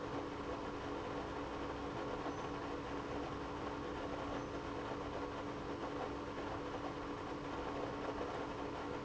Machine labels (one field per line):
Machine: pump